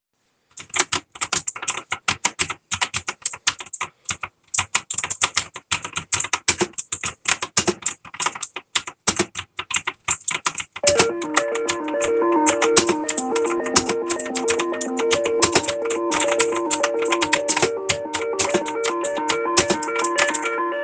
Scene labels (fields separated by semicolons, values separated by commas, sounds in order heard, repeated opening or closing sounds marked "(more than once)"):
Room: office; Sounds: keyboard typing, phone ringing